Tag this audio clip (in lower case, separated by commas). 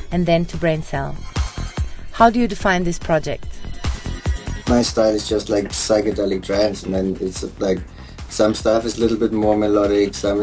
music, speech